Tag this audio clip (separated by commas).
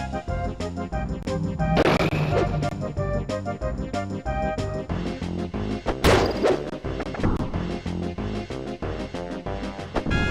Music, crash